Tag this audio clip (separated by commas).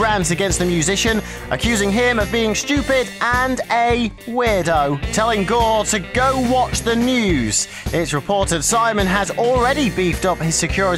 Speech, Music